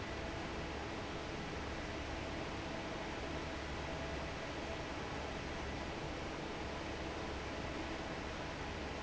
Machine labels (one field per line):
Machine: fan